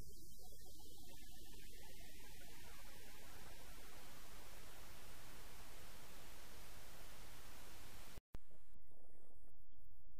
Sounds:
music, gong

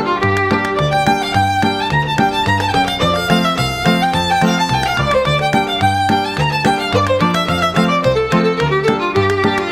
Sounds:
music, musical instrument, fiddle

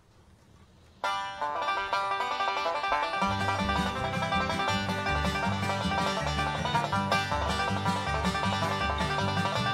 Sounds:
music

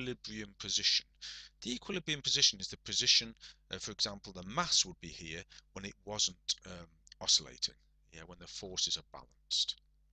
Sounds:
speech

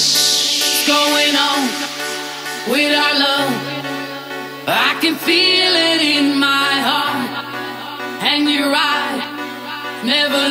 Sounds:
pop music, music

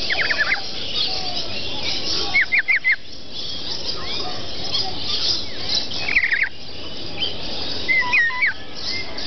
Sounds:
tweet, outside, rural or natural, bird, pets, tweeting

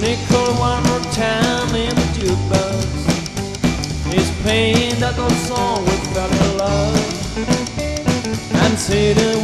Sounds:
music

